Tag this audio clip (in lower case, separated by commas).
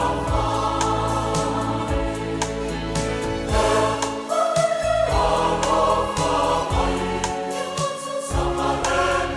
music